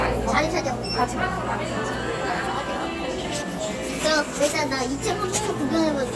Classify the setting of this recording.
cafe